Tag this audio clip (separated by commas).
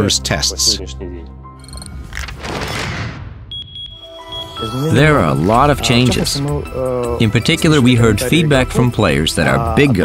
Speech, Music